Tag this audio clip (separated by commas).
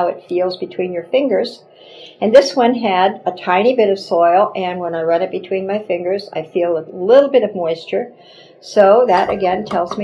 Speech